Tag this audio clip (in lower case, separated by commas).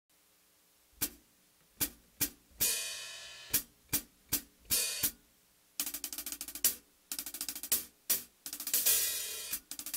musical instrument, music, cymbal, playing cymbal